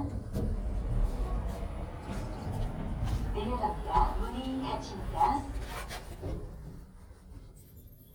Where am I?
in an elevator